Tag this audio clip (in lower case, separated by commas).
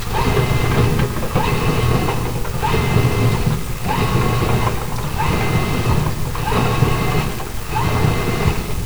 engine